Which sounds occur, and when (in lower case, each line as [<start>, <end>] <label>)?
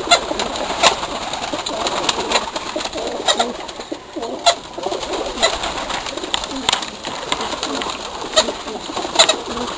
[0.00, 9.75] background noise
[0.02, 4.55] bird flight
[0.04, 0.84] coo
[1.10, 2.35] coo
[2.73, 3.64] coo
[3.87, 4.49] coo
[4.72, 6.88] bird flight
[4.77, 5.48] coo
[6.03, 6.76] coo
[7.05, 9.75] bird flight
[7.18, 7.84] coo
[8.16, 8.84] coo
[9.32, 9.71] coo